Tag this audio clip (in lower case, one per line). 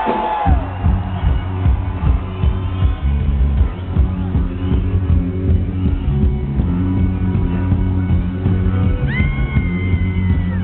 music